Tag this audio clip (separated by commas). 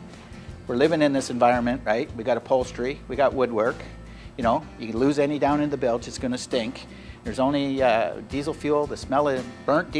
Speech, Music